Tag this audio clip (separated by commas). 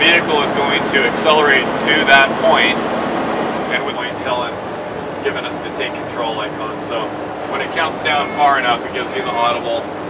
Vehicle, Speech, Truck